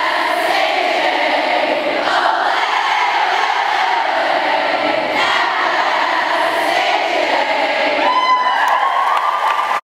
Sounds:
Mantra

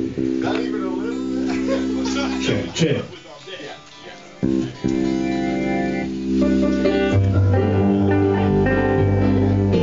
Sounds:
Music, Field recording, Speech

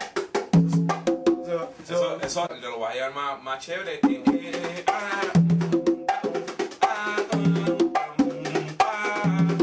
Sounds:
Speech, Percussion, Wood block, Music

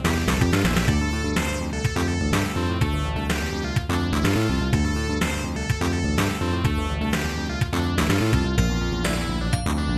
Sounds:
Music

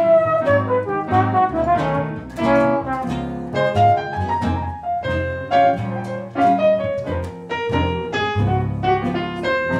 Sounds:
Music, Trombone, Brass instrument, Jazz

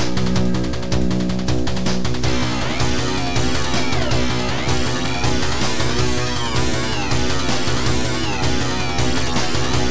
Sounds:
Rhythm and blues, Music

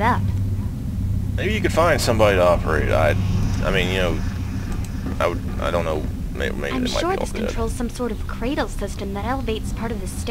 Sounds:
Speech, inside a small room

